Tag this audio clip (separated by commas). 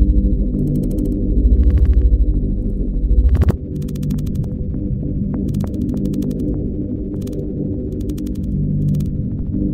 Sonar